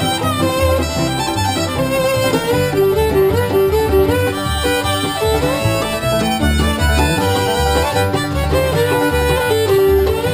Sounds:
fiddle
musical instrument
music

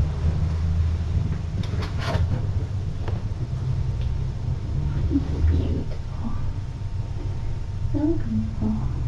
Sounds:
speech
inside a small room

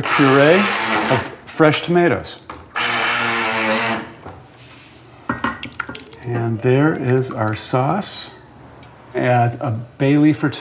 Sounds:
speech

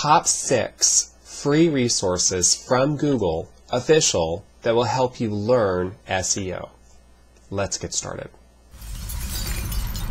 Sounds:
speech

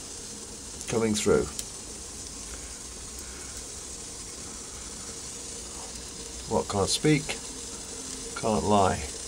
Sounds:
fire

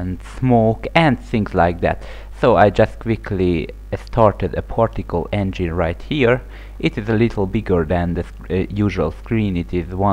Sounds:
speech

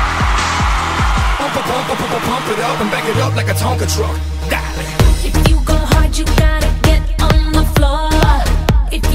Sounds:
electronic music
music
dubstep

